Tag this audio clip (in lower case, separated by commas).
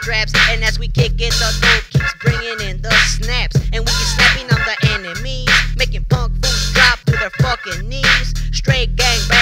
music